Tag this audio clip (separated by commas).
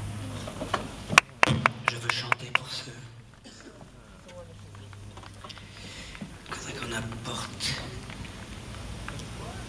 Speech, dribble